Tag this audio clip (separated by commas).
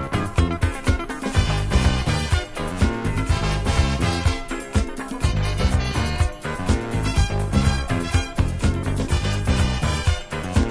Music